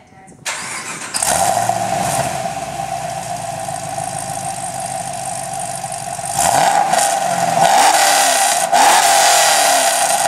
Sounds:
vehicle
medium engine (mid frequency)
car

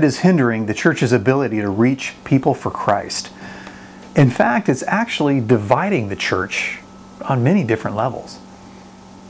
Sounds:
speech

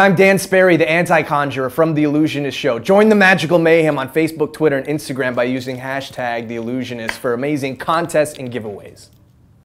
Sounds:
speech

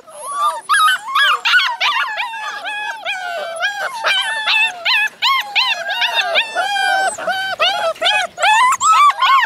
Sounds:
pets
animal
dog

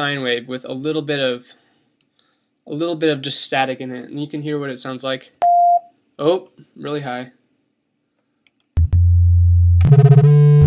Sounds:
synthesizer
speech

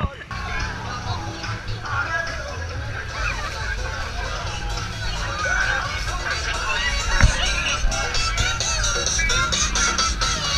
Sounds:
music
speech

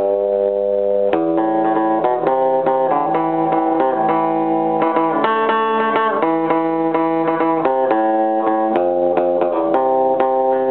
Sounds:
music
guitar
acoustic guitar
musical instrument

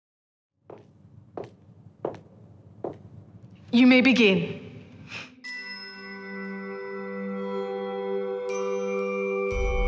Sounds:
marimba
mallet percussion
glockenspiel

